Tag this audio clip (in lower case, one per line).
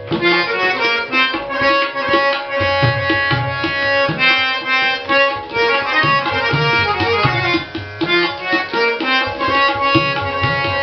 playing tabla